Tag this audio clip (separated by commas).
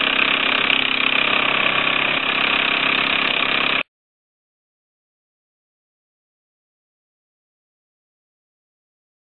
Engine